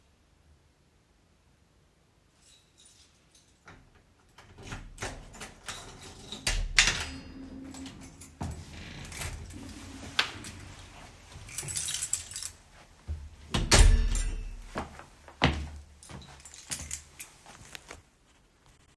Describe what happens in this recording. My keys jingled outside the door. I put the key in the lock and turned it. The door opened and I stepped inside. I closed the door behind me. I walked in and my keys jingled.